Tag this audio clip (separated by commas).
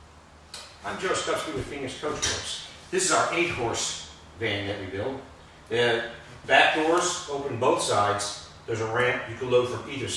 Speech